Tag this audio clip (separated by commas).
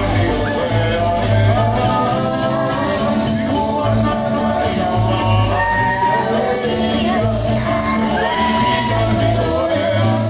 Maraca, Music